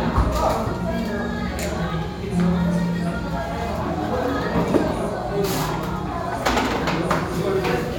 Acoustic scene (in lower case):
restaurant